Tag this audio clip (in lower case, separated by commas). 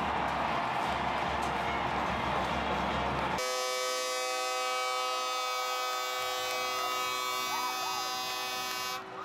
civil defense siren